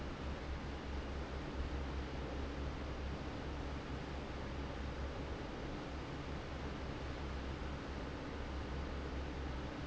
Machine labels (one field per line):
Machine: fan